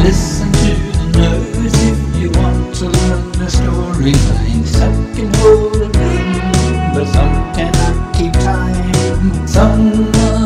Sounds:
Rhythm and blues, Music, Jazz, Middle Eastern music

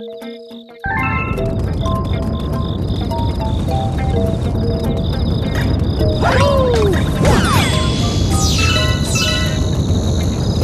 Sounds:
Music

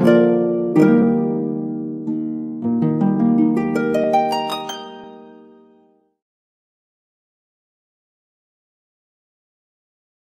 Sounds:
Silence, Music

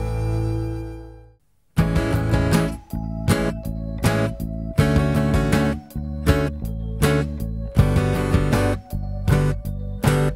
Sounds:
Musical instrument, Music, Guitar, Plucked string instrument, Strum

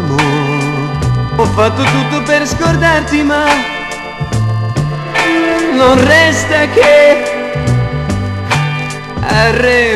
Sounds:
Music

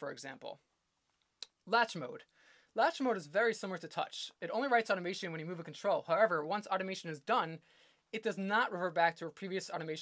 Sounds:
Speech

